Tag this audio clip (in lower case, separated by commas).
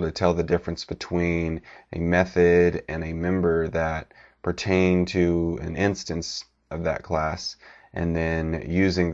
speech